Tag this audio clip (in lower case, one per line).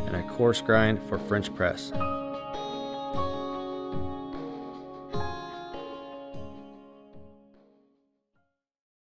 speech
music